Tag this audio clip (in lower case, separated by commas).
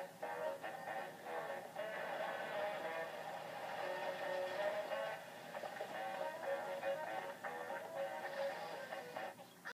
television